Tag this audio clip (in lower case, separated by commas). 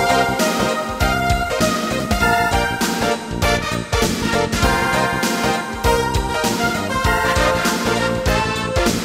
music